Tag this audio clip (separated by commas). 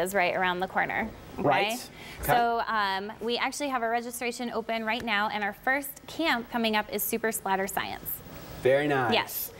Speech